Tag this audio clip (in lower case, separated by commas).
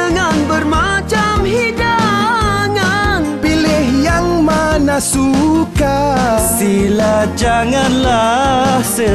music